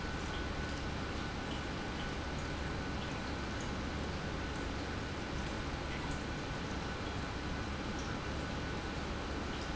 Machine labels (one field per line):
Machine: pump